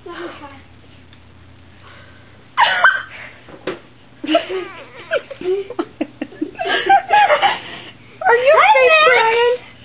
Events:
0.0s-9.8s: mechanisms
2.5s-3.1s: human sounds
3.6s-3.7s: tap
4.2s-7.6s: laughter
4.5s-5.1s: crying
7.2s-8.0s: breathing
8.2s-9.6s: woman speaking

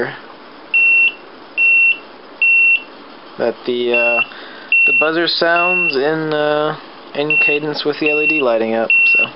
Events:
0.0s-0.2s: human voice
0.7s-1.2s: beep
1.5s-2.0s: beep
2.4s-2.9s: beep
3.3s-4.3s: male speech
3.9s-4.3s: beep
4.3s-4.7s: breathing
4.7s-5.1s: beep
4.8s-6.8s: male speech
5.5s-6.0s: beep
6.6s-6.8s: clicking
7.1s-8.9s: male speech
7.3s-7.6s: beep
8.1s-8.4s: beep
8.9s-9.3s: beep
9.0s-9.3s: male speech

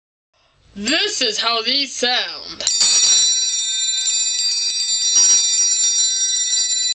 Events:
0.3s-6.9s: background noise
0.3s-0.6s: breathing
0.7s-2.6s: male speech
2.6s-6.9s: bell
2.6s-3.2s: generic impact sounds
2.7s-6.9s: music
5.2s-5.4s: generic impact sounds

